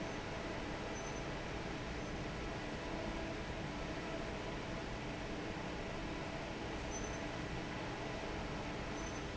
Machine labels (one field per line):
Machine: fan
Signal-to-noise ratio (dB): 0 dB